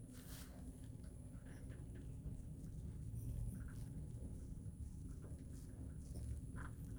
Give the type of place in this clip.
elevator